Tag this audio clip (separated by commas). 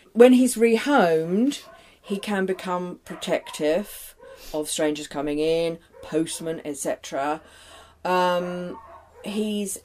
Speech, Bow-wow